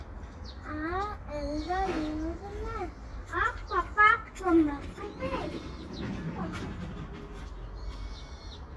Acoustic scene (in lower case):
park